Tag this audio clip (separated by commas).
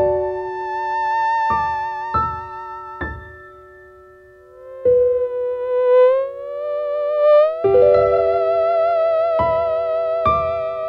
playing theremin